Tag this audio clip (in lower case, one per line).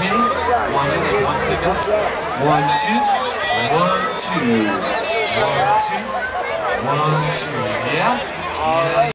speech